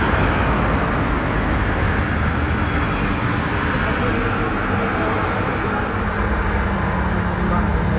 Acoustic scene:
street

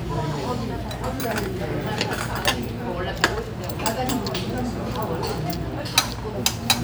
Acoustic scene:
restaurant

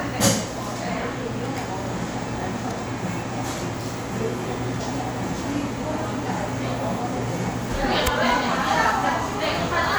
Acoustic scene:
crowded indoor space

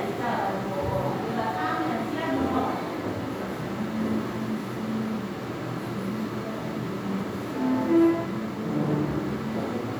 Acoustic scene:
crowded indoor space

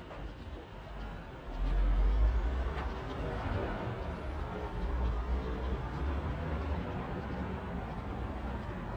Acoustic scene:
residential area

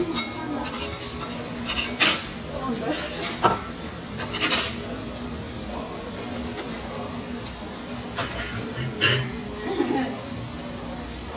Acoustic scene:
restaurant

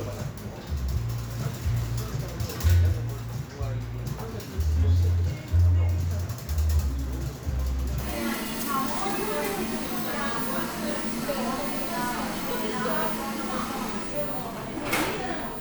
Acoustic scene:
cafe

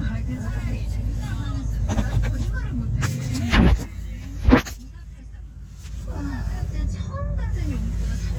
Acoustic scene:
car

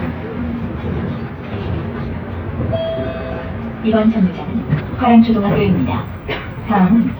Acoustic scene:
bus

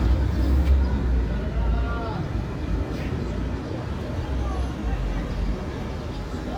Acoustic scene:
residential area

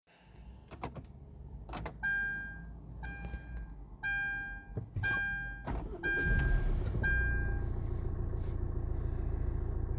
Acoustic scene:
car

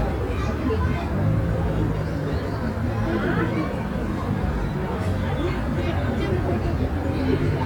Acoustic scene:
residential area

